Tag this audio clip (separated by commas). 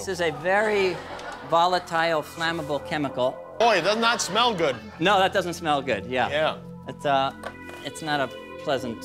Music, Speech